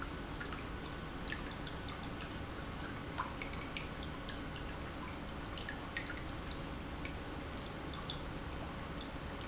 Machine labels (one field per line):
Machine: pump